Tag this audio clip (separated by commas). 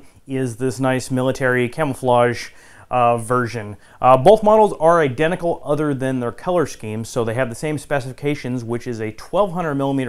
Speech